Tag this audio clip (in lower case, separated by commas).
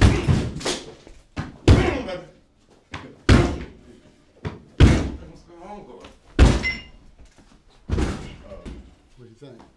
speech, slam, door slamming